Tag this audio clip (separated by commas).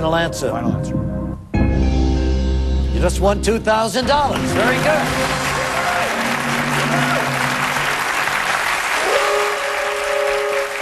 Music, Speech